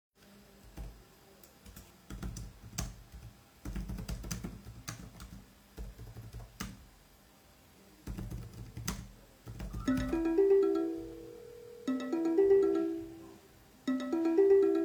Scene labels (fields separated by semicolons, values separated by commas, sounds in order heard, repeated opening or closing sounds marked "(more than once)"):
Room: living room; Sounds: keyboard typing, phone ringing